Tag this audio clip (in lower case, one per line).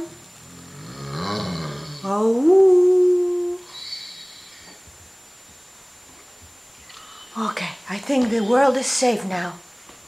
speech